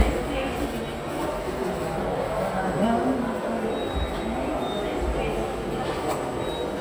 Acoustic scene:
subway station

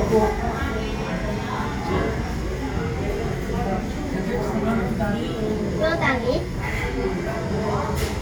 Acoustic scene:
crowded indoor space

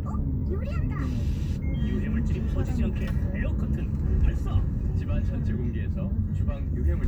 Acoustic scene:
car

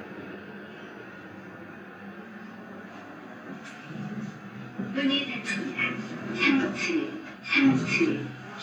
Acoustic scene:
elevator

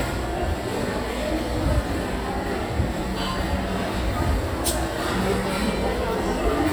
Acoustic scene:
crowded indoor space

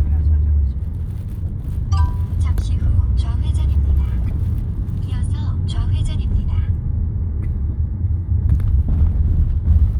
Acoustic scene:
car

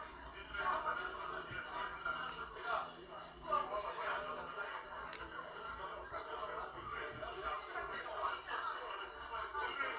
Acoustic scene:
crowded indoor space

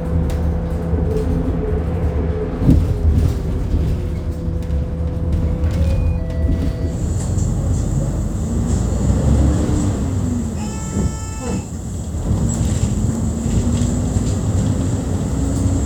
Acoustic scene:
bus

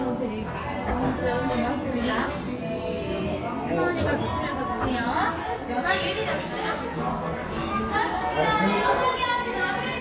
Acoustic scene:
cafe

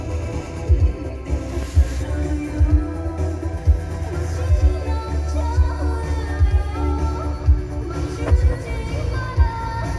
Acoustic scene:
car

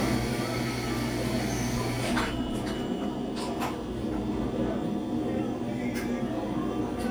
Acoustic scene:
cafe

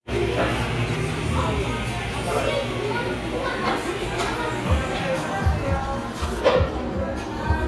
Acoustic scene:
cafe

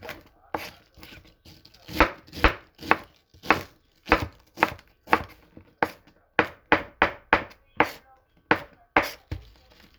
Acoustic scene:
kitchen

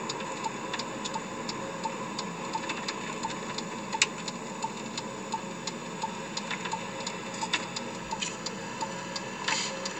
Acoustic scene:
car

